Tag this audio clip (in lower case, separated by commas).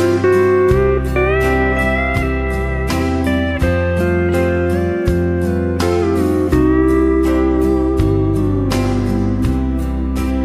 music, steel guitar